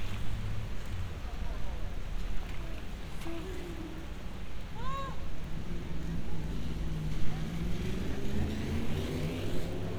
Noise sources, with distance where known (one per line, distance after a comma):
medium-sounding engine
person or small group shouting, near